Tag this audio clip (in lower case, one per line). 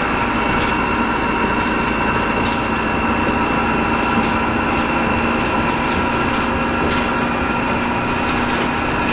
vehicle